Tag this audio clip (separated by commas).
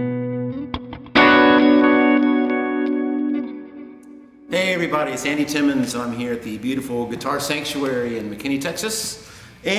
Speech, Guitar, Music, Strum, Plucked string instrument, Musical instrument